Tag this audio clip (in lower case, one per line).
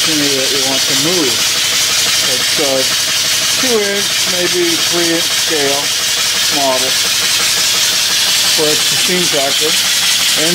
speech